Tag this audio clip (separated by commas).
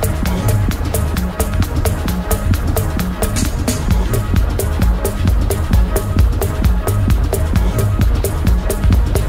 Techno, Music, Electronic music